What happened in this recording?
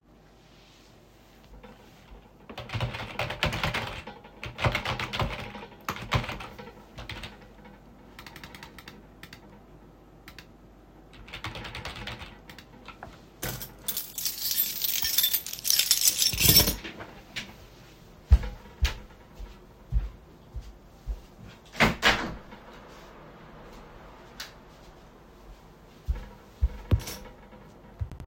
I sat down and typed on the keyboard. Then I used the mouse to click on something. After that I got up and walked to the window and opened it.